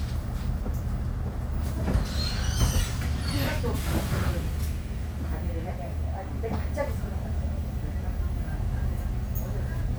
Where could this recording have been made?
on a bus